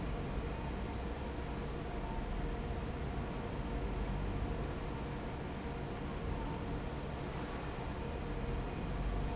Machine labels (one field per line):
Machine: fan